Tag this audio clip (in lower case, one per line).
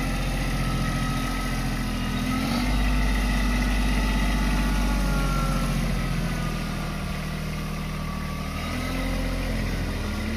tractor digging